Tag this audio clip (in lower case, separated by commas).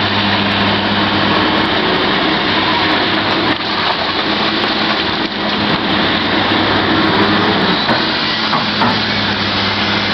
hiss